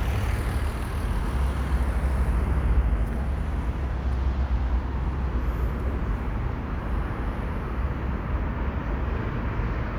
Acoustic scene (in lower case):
residential area